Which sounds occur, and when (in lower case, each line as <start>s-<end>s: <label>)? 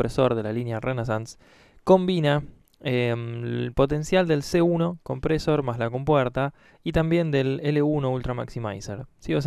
0.0s-1.4s: man speaking
0.0s-9.4s: mechanisms
1.4s-1.8s: breathing
1.8s-1.8s: tick
1.9s-2.4s: man speaking
2.7s-2.8s: human sounds
2.8s-6.5s: man speaking
6.5s-6.8s: breathing
6.9s-9.1s: man speaking
9.2s-9.4s: man speaking